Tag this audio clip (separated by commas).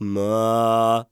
Male singing, Singing, Human voice